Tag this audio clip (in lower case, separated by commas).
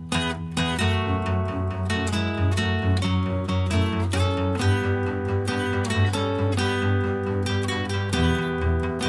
music, acoustic guitar